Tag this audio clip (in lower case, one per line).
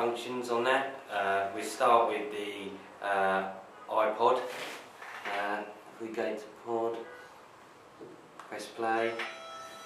speech